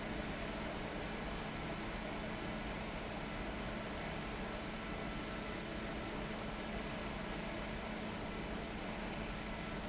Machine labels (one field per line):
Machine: fan